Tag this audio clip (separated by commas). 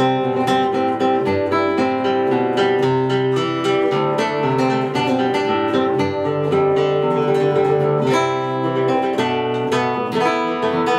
Musical instrument, Plucked string instrument, Guitar, Music